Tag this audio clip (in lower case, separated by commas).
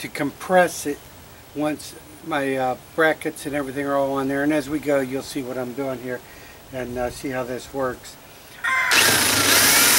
sailing ship, speech